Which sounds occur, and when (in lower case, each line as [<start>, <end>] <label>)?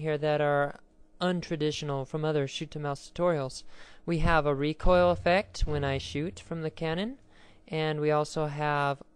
[0.00, 0.78] woman speaking
[0.00, 9.15] mechanisms
[1.19, 3.63] woman speaking
[3.62, 4.03] breathing
[4.06, 7.15] woman speaking
[4.14, 4.44] wind noise (microphone)
[7.26, 7.62] breathing
[7.66, 9.03] woman speaking